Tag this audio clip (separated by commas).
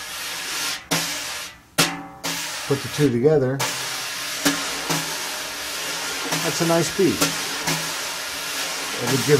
Music, Drum, Musical instrument, Drum kit, Speech